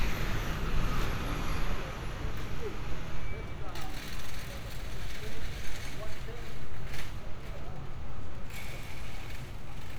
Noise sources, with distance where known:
large-sounding engine; person or small group talking

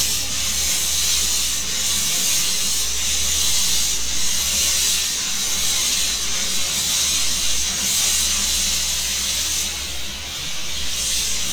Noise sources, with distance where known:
non-machinery impact, near

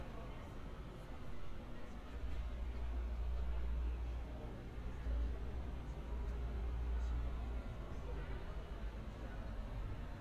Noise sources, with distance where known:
person or small group talking, far

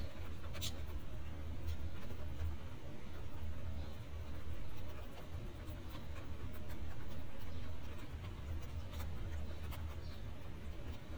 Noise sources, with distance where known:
background noise

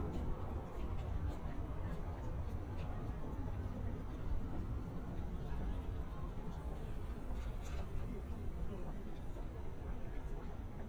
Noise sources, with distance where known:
person or small group talking, far

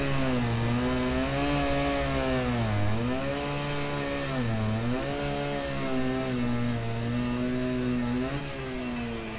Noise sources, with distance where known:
unidentified powered saw, near

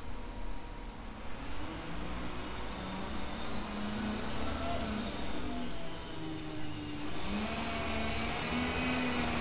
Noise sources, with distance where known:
medium-sounding engine, near

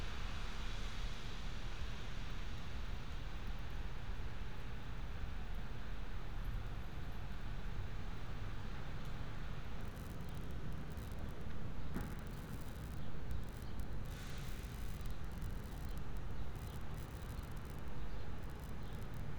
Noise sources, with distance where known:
background noise

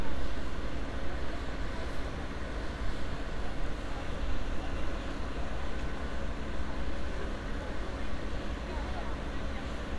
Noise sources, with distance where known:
unidentified human voice

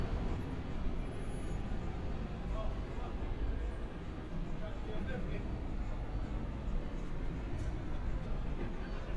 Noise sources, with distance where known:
unidentified human voice, far

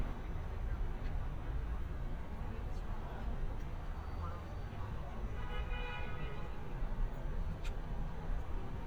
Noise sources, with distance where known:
car horn, far

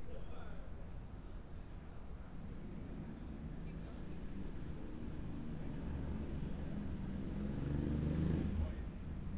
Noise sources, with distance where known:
engine of unclear size; person or small group talking, far

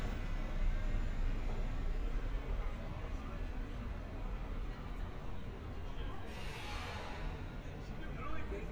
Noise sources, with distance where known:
engine of unclear size, far; person or small group talking, near

